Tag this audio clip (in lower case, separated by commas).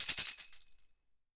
musical instrument, tambourine, percussion, music